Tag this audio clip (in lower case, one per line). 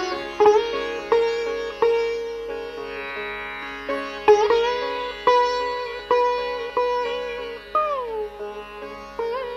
music
sitar
carnatic music
classical music
musical instrument